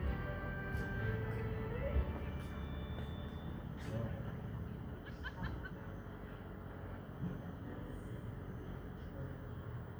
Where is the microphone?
in a park